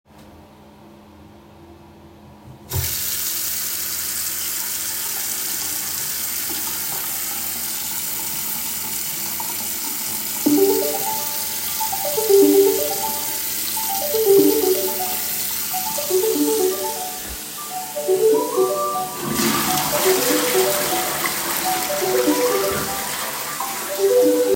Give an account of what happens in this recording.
I started recording while holding the phone in my hand. I turned on the running water and after a few seconds the phone started ringing. While the water was still running and the phone was ringing I flushed the toilet so the three sounds overlapped before stopping the recording.